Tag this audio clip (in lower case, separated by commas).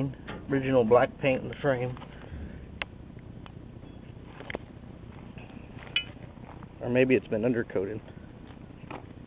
speech, vehicle